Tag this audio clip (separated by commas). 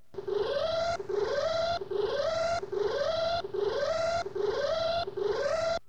Alarm